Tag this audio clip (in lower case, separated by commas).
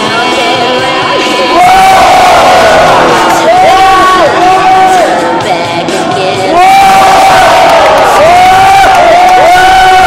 crowd, people crowd